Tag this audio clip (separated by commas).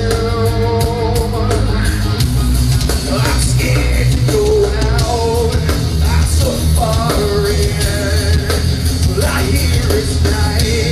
Music